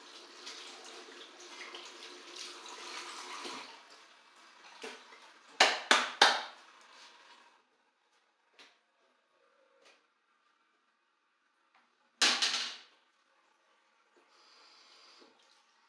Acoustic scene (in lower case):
restroom